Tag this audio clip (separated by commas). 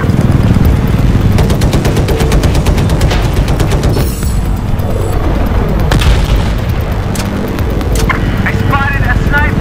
Speech